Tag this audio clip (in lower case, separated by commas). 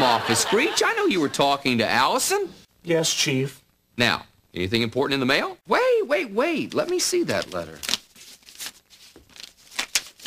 speech